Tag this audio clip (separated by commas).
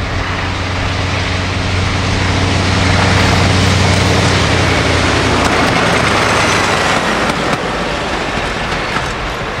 Vehicle, Engine, Heavy engine (low frequency)